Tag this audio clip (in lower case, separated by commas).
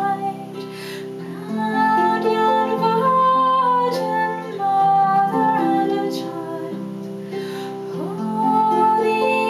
female singing, music